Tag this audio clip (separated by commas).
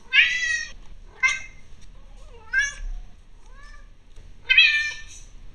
Animal, Domestic animals, Cat